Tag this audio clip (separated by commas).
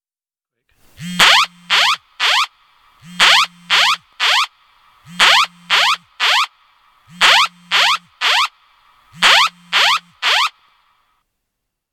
Alarm